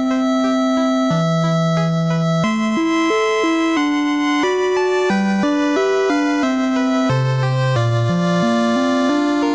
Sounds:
Music

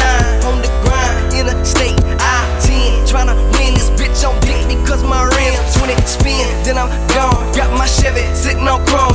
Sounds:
Music, Funk

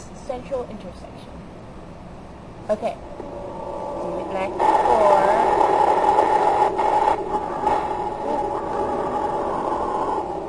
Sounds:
Speech

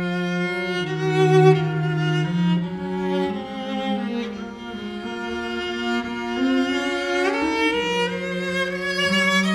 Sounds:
Violin, Bowed string instrument

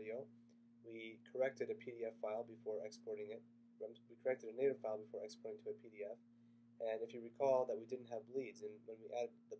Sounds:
Speech

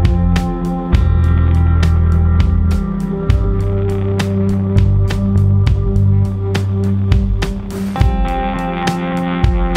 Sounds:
Music

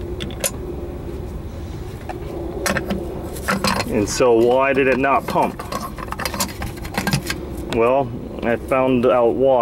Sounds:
Speech

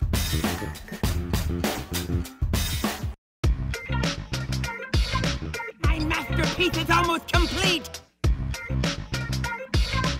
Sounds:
Music, Speech

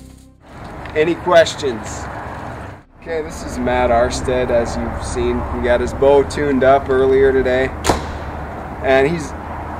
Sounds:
Speech

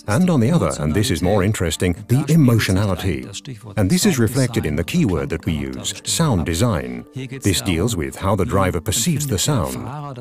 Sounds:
Speech

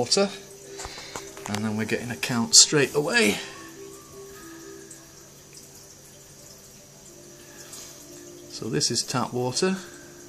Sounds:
Speech, Music

